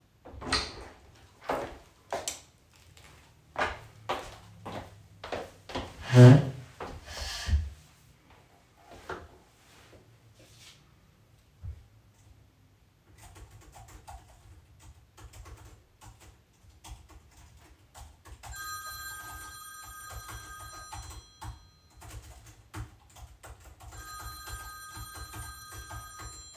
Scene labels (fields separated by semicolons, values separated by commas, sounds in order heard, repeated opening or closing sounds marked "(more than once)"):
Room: office; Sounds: door, footsteps, light switch, keyboard typing, phone ringing